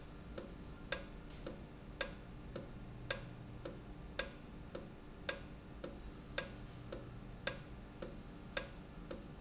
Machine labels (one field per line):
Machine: valve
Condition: normal